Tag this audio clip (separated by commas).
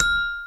Mallet percussion, Marimba, Percussion, Musical instrument, Music